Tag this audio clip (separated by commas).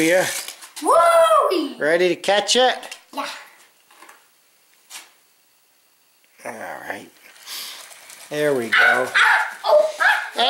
inside a small room, Speech